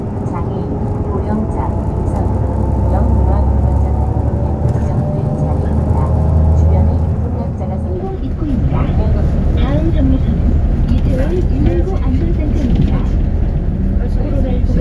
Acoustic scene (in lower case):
bus